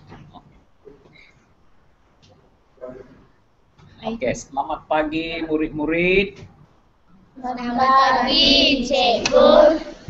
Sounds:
speech

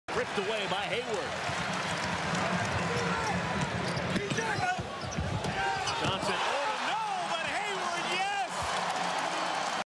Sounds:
speech

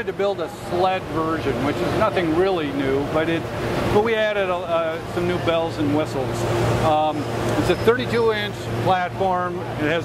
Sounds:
speech

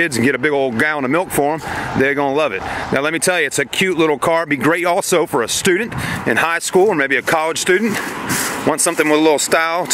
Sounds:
speech
vehicle

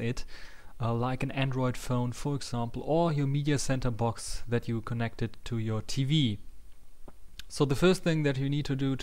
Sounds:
speech

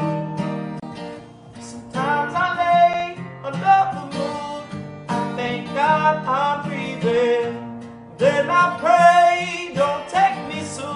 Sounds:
music
jazz

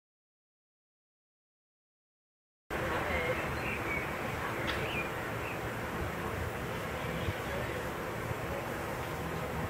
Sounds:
speech
bird

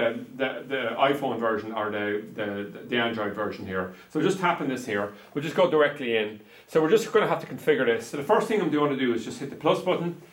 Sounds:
speech

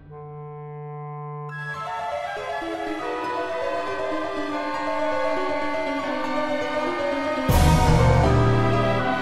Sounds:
orchestra
music

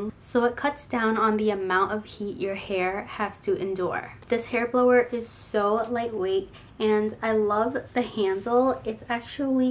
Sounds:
speech

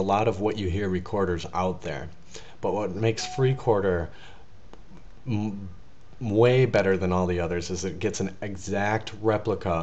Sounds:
speech

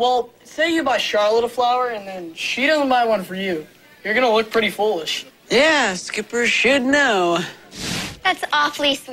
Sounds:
speech

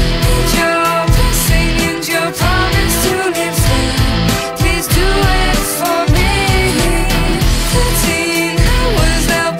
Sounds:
independent music
music

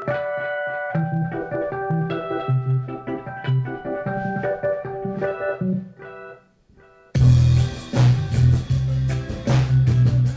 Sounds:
rimshot
bass drum
drum
snare drum
cymbal
percussion
hi-hat
drum kit

